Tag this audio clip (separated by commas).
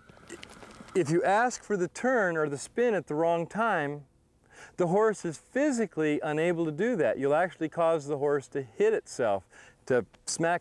Speech